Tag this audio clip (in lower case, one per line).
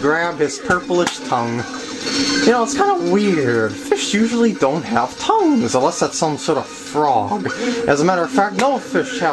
speech